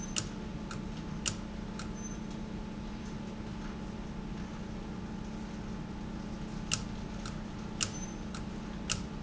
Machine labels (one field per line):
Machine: valve